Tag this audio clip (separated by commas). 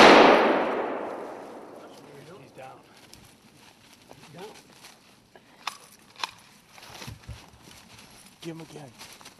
outside, rural or natural, Speech